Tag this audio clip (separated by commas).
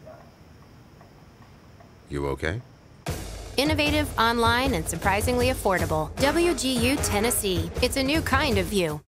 Speech, Music